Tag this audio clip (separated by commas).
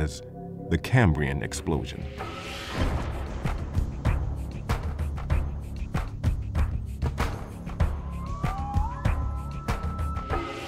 Music, Speech